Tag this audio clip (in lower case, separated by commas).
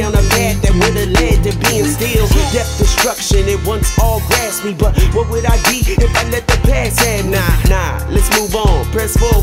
music, pop music